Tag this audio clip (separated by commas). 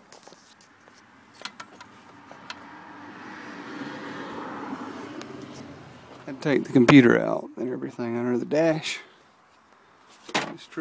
Vehicle, Speech